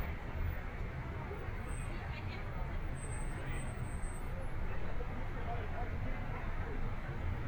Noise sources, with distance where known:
person or small group talking, far

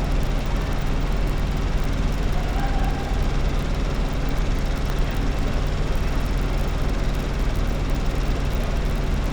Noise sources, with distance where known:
large-sounding engine, near

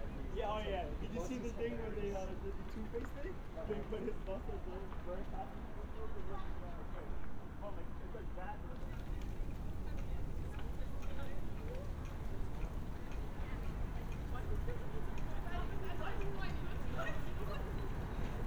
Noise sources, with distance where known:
person or small group talking, near

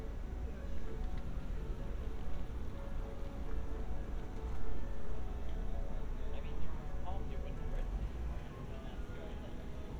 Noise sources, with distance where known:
music from a fixed source, far
person or small group talking, far

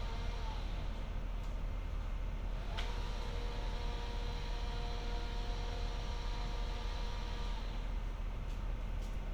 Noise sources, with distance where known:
unidentified powered saw, far

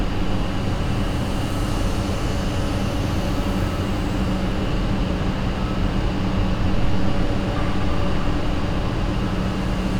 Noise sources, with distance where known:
engine of unclear size

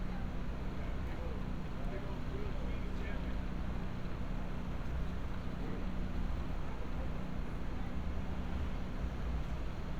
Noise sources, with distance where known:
person or small group talking

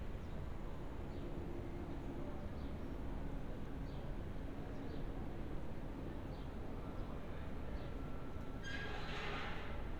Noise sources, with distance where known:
background noise

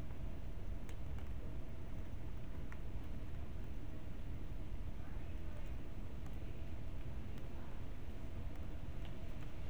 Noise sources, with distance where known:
background noise

